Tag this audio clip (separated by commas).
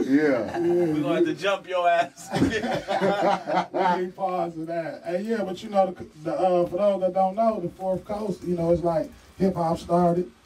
Speech